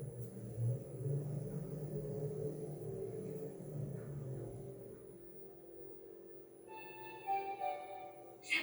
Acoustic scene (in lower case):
elevator